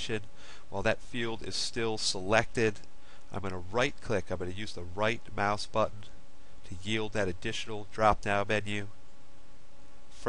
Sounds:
Speech

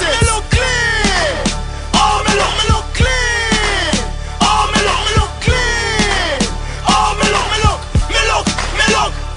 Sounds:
Music

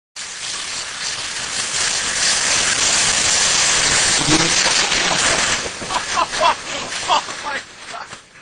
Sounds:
Speech

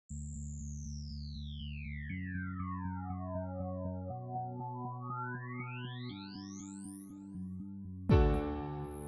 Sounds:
Music

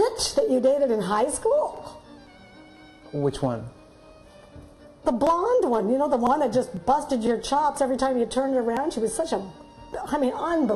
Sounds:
Speech, Conversation

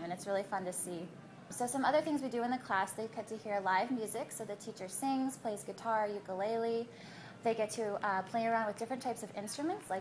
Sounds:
Speech

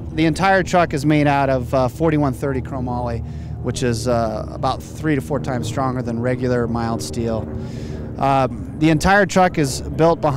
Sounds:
Speech

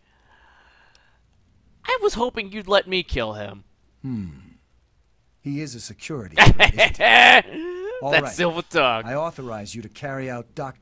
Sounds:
Speech

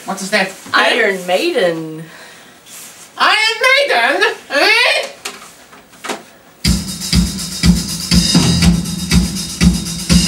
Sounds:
Heavy metal, Music, Speech

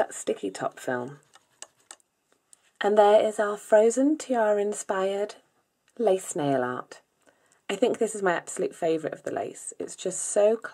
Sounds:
Speech

